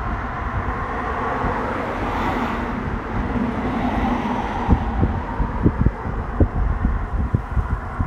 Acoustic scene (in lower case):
street